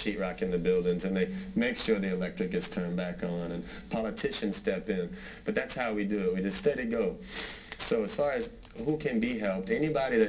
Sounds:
Speech

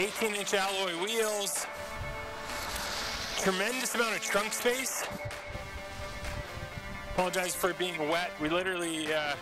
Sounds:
Speech, Music

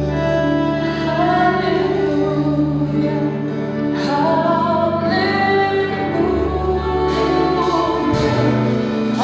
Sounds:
Female singing, Music

